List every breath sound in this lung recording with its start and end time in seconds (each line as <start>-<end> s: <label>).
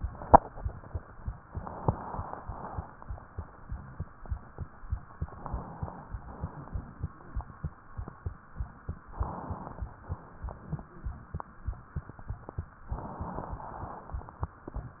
1.44-2.44 s: inhalation
2.44-3.13 s: exhalation
5.25-6.20 s: inhalation
6.20-7.74 s: exhalation
7.13-7.39 s: wheeze
9.13-10.04 s: inhalation
10.04-11.48 s: exhalation
10.87-11.10 s: wheeze
12.91-13.64 s: inhalation
12.91-13.64 s: crackles